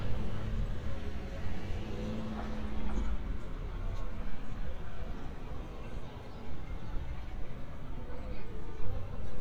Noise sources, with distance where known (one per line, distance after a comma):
medium-sounding engine
person or small group talking